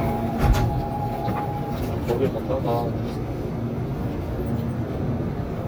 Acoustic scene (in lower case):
subway train